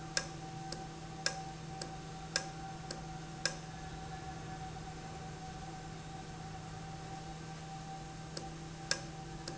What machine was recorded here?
valve